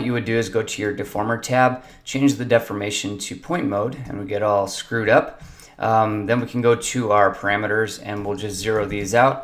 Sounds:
Speech

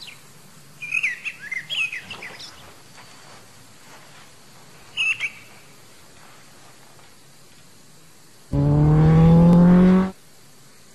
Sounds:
Bird, Bird vocalization, tweet

